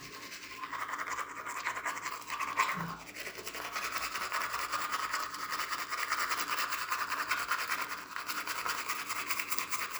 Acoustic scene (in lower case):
restroom